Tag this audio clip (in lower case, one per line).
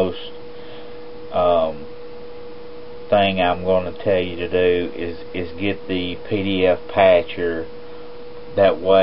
speech